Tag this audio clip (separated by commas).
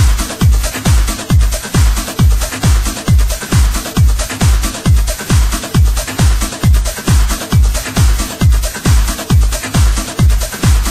Music, Electronic music